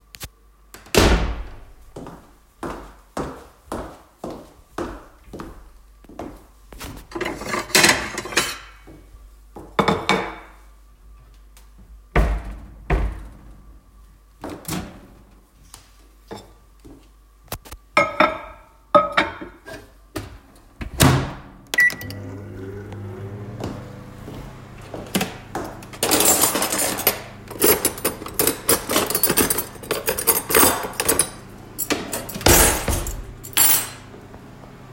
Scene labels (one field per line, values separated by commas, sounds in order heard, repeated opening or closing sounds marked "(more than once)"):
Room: kitchen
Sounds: door, footsteps, cutlery and dishes, wardrobe or drawer (more than once), microwave